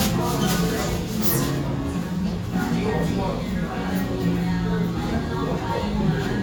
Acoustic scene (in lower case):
restaurant